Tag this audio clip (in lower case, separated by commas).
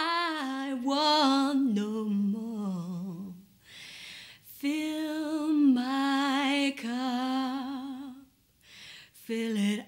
singing, vocal music